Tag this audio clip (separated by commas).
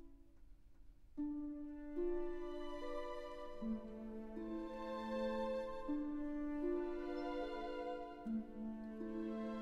Music